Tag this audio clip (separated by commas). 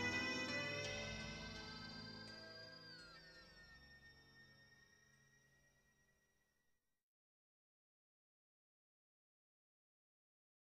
Music